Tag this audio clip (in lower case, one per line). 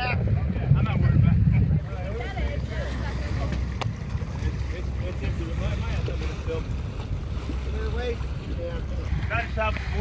boat
vehicle
speech